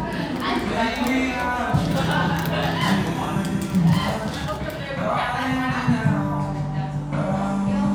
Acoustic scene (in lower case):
cafe